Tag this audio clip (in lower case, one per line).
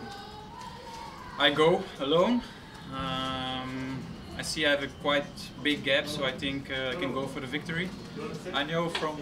speech